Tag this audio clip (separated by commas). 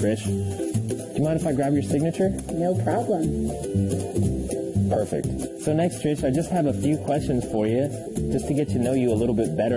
Speech, inside a small room, Music